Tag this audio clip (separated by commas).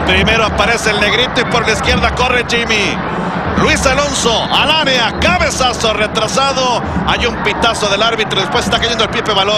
Speech